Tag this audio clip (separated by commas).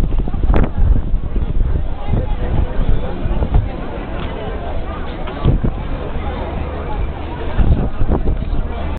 Speech